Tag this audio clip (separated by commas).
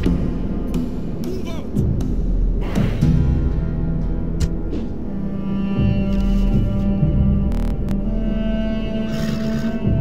Music, Speech